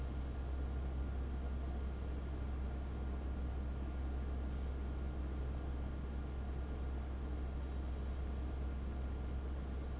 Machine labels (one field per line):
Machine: fan